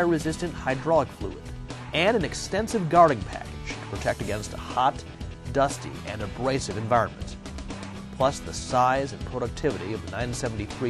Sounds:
Music, Speech

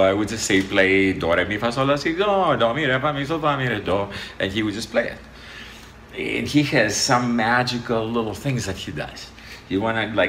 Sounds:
Speech

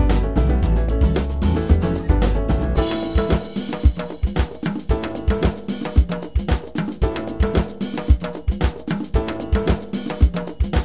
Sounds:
Music

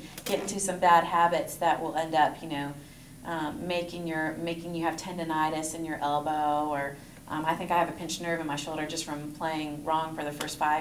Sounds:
Speech

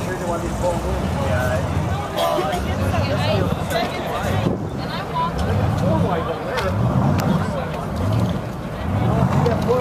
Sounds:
Speech

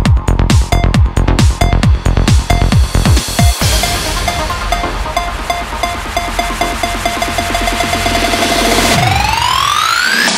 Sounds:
Electronic dance music, Music

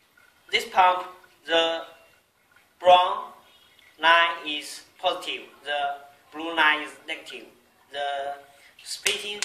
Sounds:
Speech

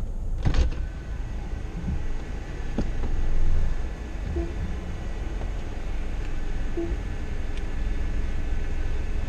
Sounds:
Car, Vehicle

